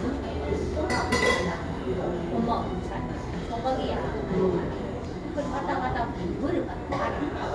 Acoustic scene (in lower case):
cafe